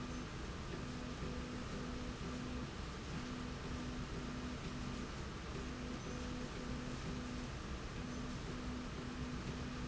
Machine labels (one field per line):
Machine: slide rail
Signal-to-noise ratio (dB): 0 dB